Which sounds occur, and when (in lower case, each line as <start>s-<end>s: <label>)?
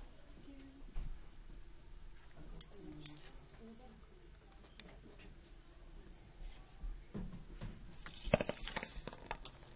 0.0s-9.7s: background noise
0.4s-0.8s: human voice
0.5s-0.6s: generic impact sounds
0.9s-1.0s: generic impact sounds
2.1s-2.3s: generic impact sounds
2.3s-3.1s: human voice
2.5s-2.7s: generic impact sounds
2.9s-3.3s: generic impact sounds
3.4s-3.6s: generic impact sounds
3.5s-3.9s: speech
4.3s-4.9s: generic impact sounds
5.1s-5.5s: generic impact sounds
6.1s-6.7s: surface contact
7.1s-7.7s: generic impact sounds
7.9s-9.7s: firecracker
8.0s-8.1s: generic impact sounds
8.3s-9.5s: generic impact sounds